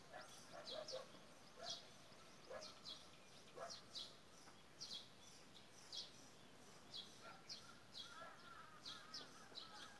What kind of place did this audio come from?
park